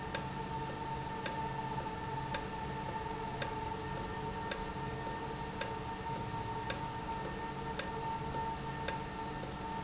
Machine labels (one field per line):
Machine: valve